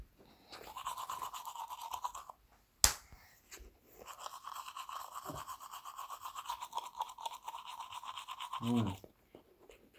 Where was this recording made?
in a restroom